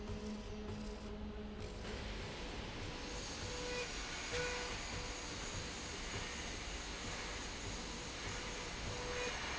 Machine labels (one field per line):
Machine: slide rail